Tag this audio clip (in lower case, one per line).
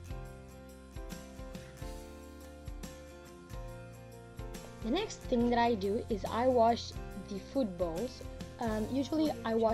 speech
music